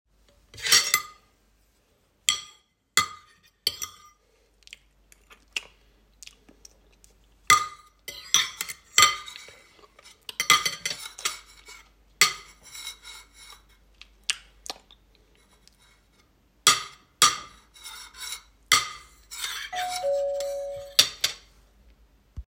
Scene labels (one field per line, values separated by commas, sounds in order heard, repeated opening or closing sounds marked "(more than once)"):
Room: kitchen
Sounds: bell ringing